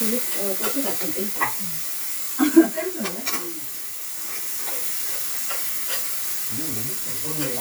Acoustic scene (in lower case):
restaurant